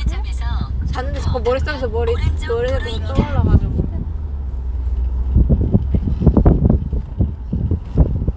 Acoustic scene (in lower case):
car